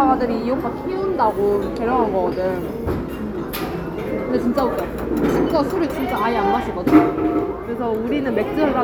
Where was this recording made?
in a restaurant